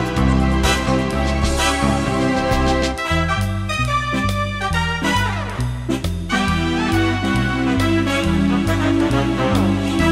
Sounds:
electric piano, organ, piano, keyboard (musical), musical instrument, music

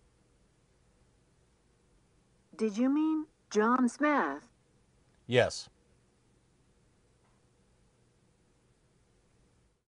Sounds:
speech

